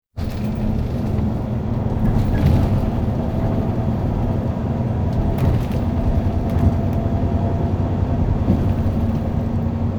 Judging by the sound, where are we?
on a bus